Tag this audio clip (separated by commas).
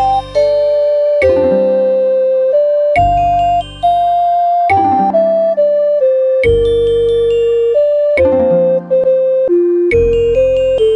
Music, Tender music